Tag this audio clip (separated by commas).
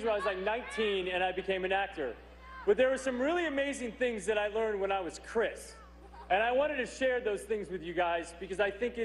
monologue, Speech, Male speech